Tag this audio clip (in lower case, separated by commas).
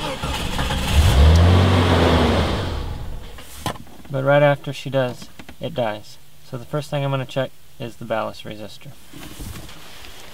vehicle, speech